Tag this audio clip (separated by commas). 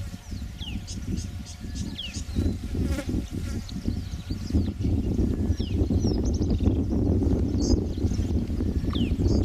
cheetah chirrup